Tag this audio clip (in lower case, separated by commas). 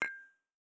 glass, dishes, pots and pans, domestic sounds, clink